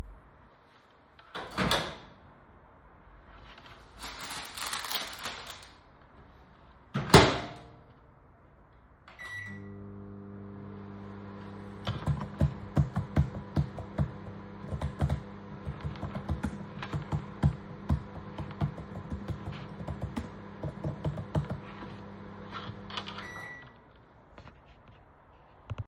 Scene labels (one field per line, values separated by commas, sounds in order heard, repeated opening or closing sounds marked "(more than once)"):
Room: kitchen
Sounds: microwave, keyboard typing